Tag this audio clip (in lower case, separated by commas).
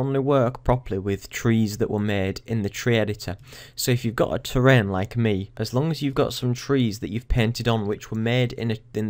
speech